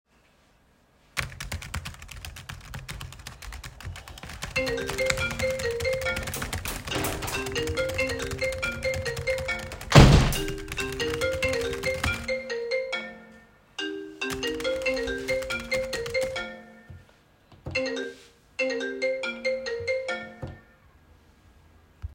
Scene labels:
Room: office; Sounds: keyboard typing, phone ringing, window

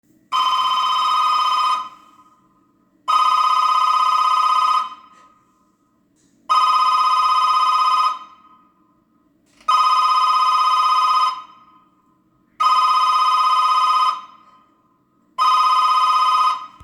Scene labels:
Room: hallway; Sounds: bell ringing

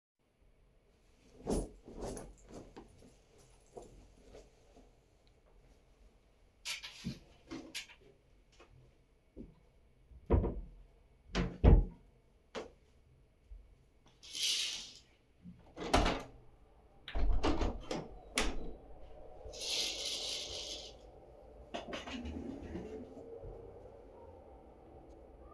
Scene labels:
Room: living room; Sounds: footsteps, wardrobe or drawer, window

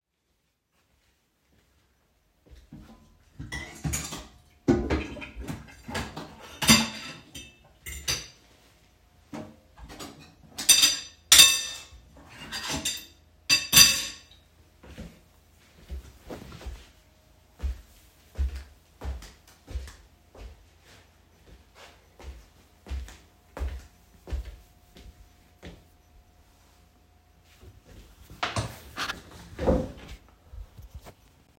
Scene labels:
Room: hallway, bathroom; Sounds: cutlery and dishes, footsteps

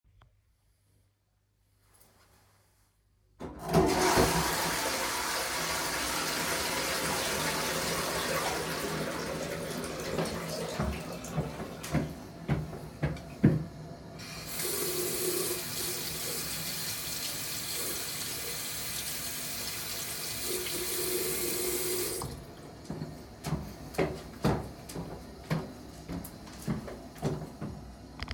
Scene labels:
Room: bathroom; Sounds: toilet flushing, footsteps, running water

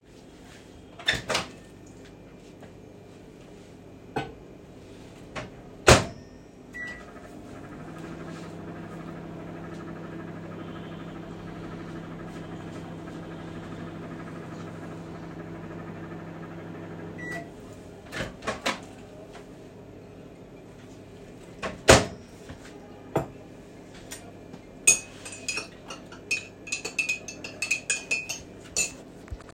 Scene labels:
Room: kitchen; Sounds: cutlery and dishes, microwave, phone ringing

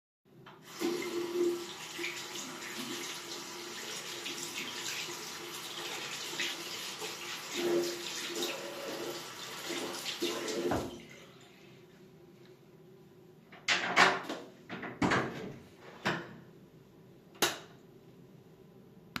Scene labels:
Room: bathroom; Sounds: running water, door, light switch

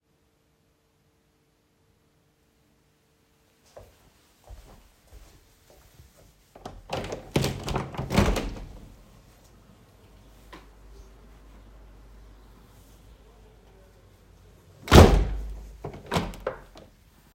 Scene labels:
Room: bedroom; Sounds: footsteps, window (more than once)

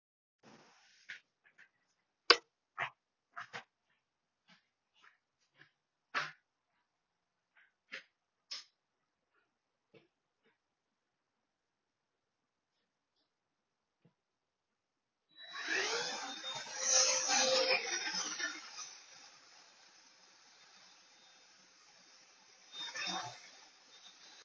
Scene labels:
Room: hallway; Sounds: light switch, vacuum cleaner

